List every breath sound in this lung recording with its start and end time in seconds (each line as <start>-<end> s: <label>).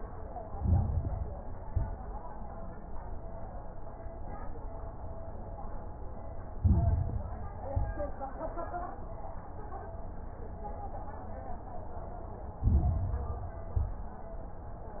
0.42-1.52 s: inhalation
0.42-1.52 s: crackles
1.56-2.03 s: exhalation
1.56-2.03 s: crackles
6.48-7.58 s: inhalation
6.48-7.58 s: crackles
7.66-8.13 s: exhalation
7.66-8.13 s: crackles
12.52-13.62 s: inhalation
12.52-13.62 s: crackles
13.68-14.15 s: exhalation
13.68-14.15 s: crackles